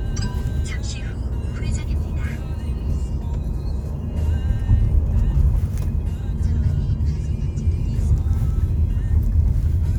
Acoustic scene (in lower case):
car